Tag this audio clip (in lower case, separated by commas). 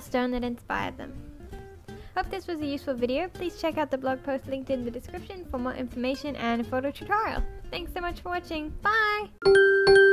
speech, music